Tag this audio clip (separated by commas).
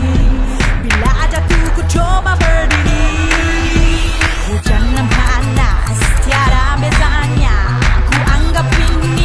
Music